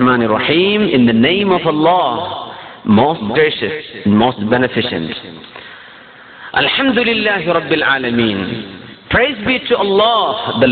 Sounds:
male speech
speech
monologue

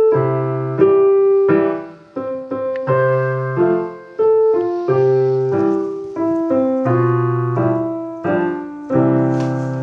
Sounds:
music

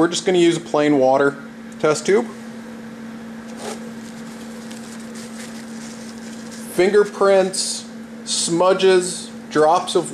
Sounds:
speech
inside a small room

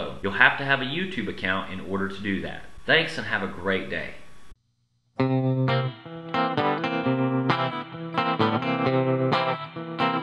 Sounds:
inside a small room
music
speech

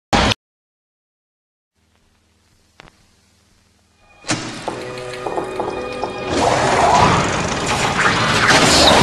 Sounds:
music

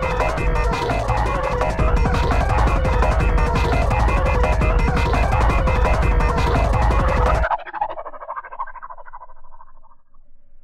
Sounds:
electronic music
music
techno

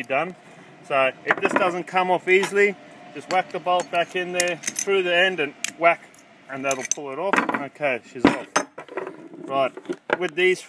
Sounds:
speech

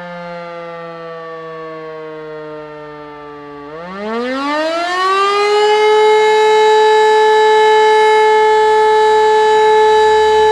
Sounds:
civil defense siren

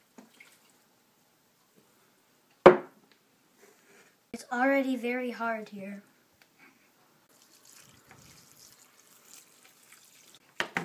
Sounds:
speech

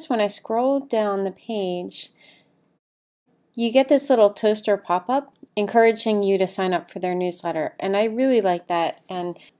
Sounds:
speech

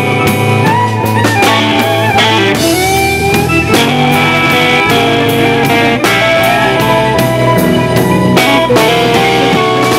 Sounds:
exciting music
music
blues

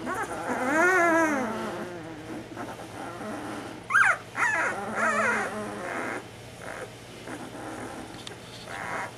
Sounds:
dog whimpering

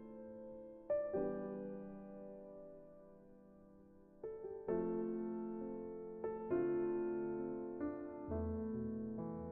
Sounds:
music

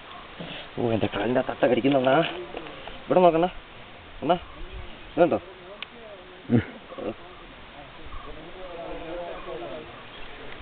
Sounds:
goose

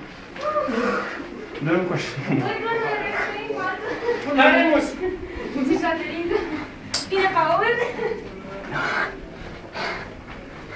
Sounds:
speech

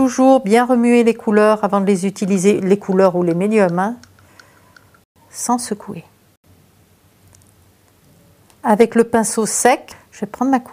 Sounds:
speech

